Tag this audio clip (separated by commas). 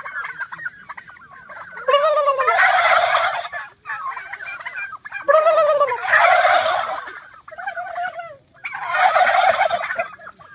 turkey gobbling